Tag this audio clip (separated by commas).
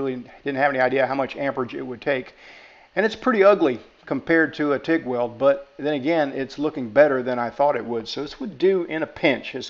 arc welding